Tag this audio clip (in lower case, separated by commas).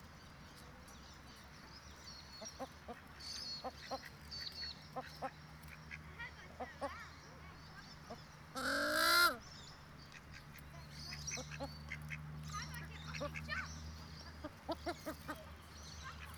animal, livestock, fowl